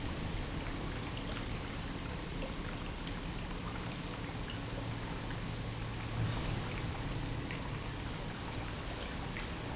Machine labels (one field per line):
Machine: pump